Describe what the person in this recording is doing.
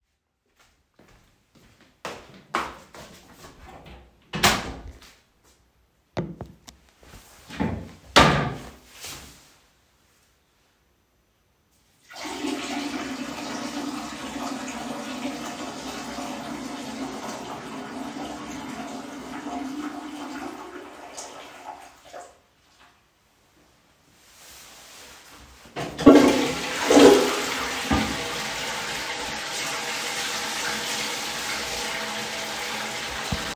I walked into the toilet, closed the door, picked up the toilet sitting board, peed, dressed on my pants, flushed the toilet and at last washed my hands